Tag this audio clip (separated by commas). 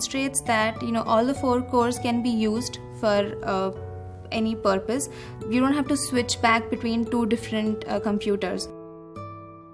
Pizzicato, Zither